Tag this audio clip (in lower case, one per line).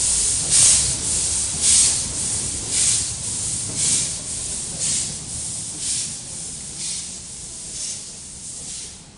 hiss